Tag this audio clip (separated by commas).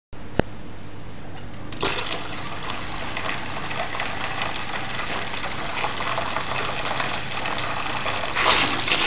Water